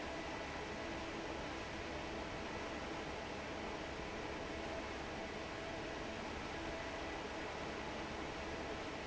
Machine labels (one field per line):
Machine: fan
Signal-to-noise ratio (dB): 6 dB